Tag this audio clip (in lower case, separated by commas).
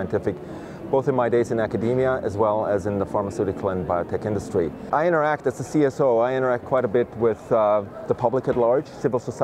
speech